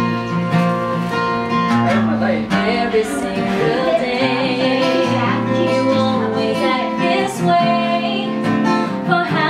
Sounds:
Speech, Music, Flamenco

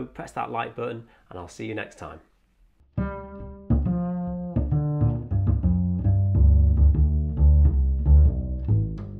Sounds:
playing double bass

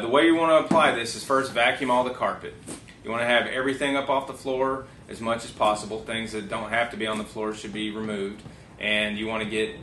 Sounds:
Speech

